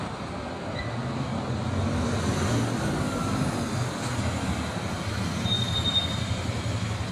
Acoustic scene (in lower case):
street